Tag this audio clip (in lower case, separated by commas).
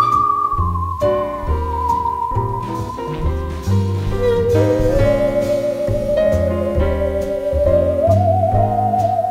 playing theremin